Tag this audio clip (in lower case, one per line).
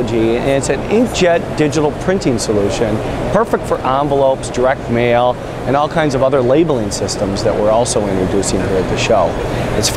speech